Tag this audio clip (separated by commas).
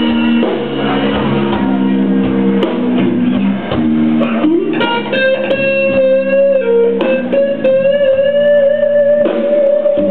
Music, Blues